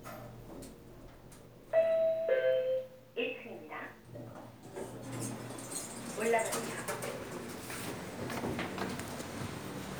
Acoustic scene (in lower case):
elevator